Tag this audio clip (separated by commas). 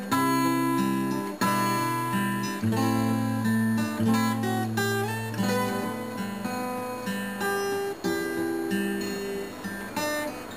Strum, playing acoustic guitar, Guitar, Plucked string instrument, Musical instrument, Music, Acoustic guitar